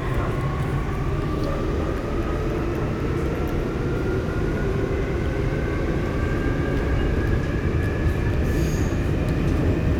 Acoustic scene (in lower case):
subway train